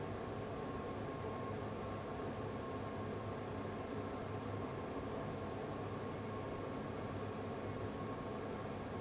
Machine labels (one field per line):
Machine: fan